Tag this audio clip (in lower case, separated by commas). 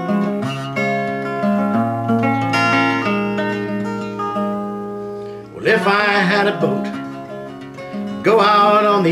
music